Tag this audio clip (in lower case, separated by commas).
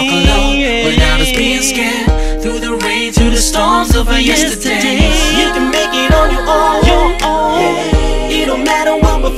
music, rhythm and blues, singing